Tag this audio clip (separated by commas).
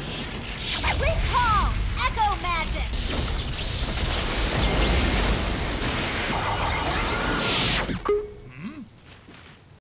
Speech